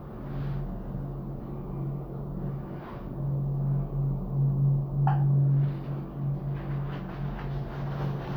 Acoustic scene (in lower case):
elevator